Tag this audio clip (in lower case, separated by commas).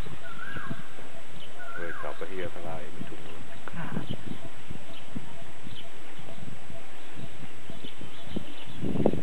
speech, outside, rural or natural